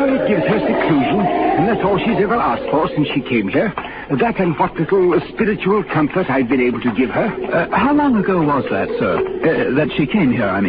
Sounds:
Speech, Radio

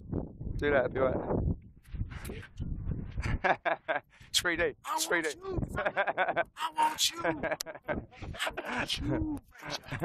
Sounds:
Speech

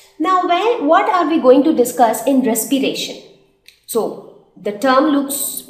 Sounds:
Speech

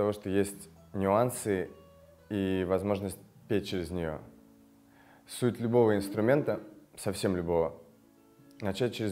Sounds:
Music, Speech

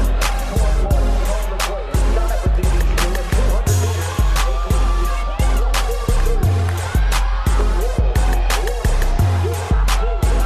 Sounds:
outside, urban or man-made, Music, Speech

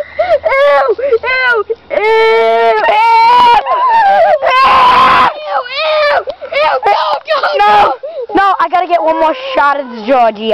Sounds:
Speech

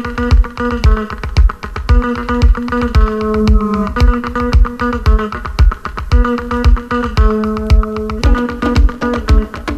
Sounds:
Music

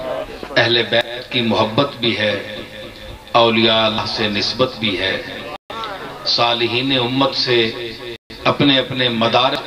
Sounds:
Speech, monologue, man speaking

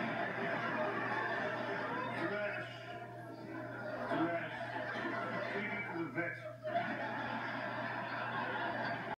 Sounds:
Speech

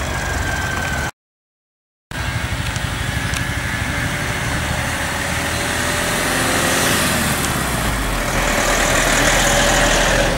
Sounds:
Motor vehicle (road), Car, Car passing by, Vehicle

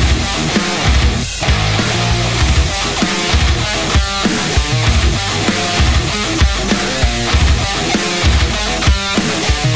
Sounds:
Music

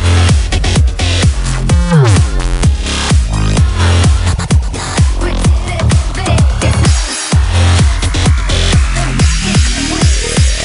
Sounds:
Music

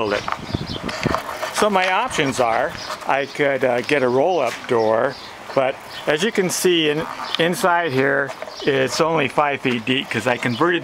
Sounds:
Speech

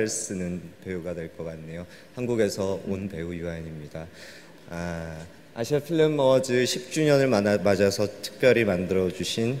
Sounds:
Narration, Speech, Male speech

